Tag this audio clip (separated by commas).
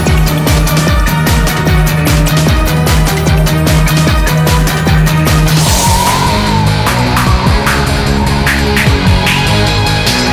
Music